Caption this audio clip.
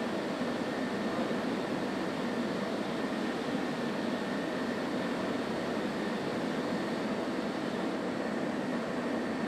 Spraying and whirring noise